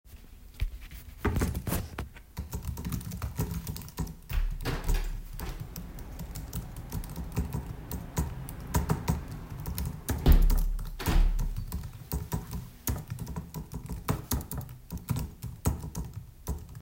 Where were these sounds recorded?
living room